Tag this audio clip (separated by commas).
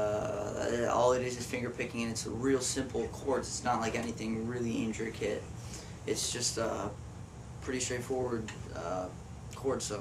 Speech